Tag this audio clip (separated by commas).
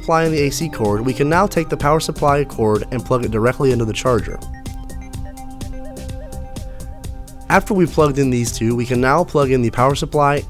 Speech, Music